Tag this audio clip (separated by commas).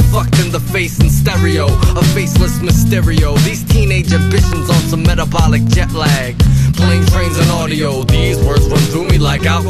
Music